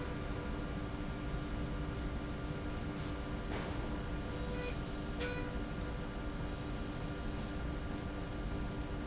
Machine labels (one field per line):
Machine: slide rail